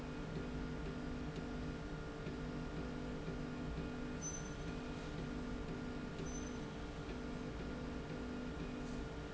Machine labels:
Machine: slide rail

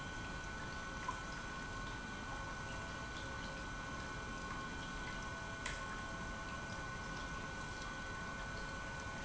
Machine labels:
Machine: pump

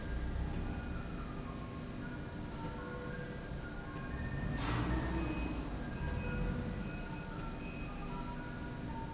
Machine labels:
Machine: slide rail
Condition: normal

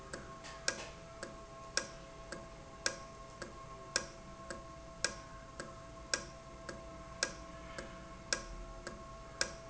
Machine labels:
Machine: valve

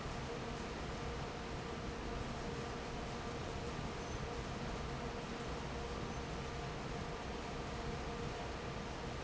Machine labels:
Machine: fan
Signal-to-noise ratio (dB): 0 dB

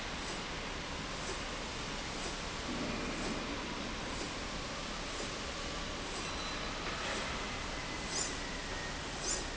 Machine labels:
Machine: slide rail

